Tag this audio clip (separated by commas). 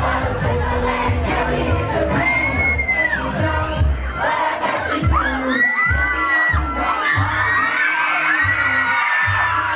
Music